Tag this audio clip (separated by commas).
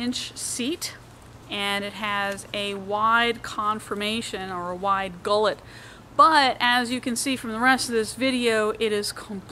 Speech